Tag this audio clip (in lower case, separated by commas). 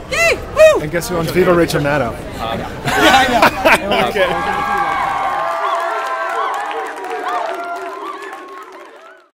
whoop, speech